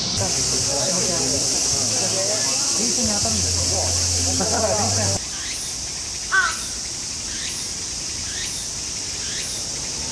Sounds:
crowd, hiss, steam

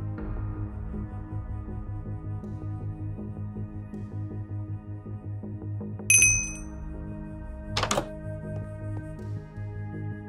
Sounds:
music

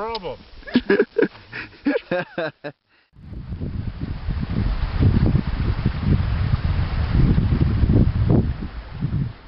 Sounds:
wind, speech, outside, rural or natural

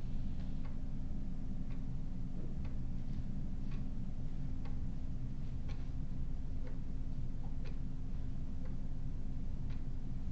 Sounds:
tick

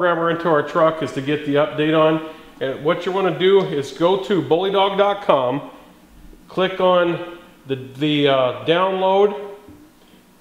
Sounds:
speech

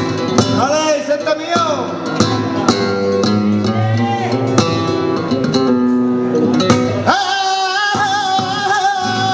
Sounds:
flamenco, singing, musical instrument, guitar, music of latin america, speech, music

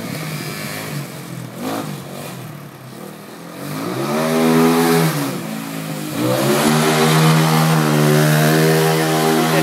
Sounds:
speech

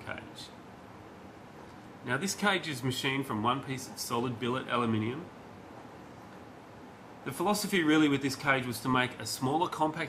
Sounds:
speech

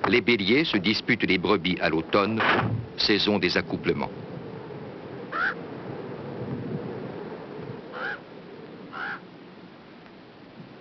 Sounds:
speech, animal

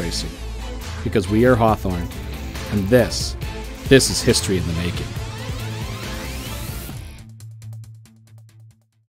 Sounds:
speech, music

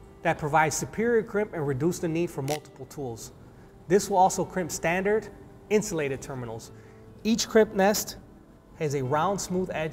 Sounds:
tools, music, speech

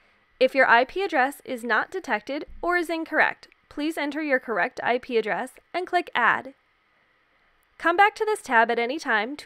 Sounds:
speech

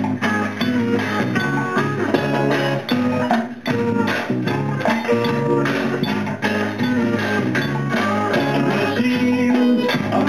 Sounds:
music, rock music, psychedelic rock

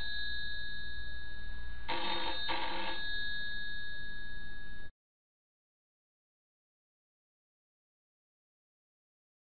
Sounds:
silence, inside a small room, telephone

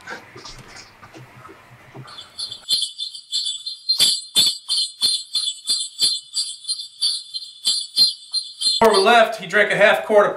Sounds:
inside a small room, speech

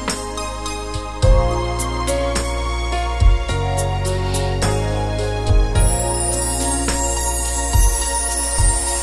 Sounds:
music

